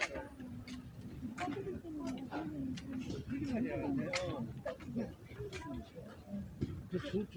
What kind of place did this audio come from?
residential area